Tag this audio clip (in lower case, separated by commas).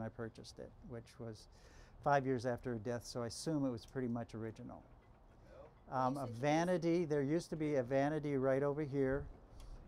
speech